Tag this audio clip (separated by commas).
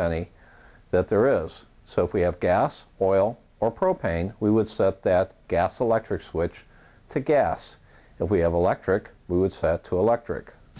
Speech